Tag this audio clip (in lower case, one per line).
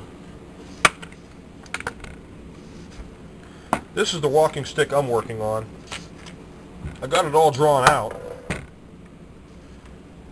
speech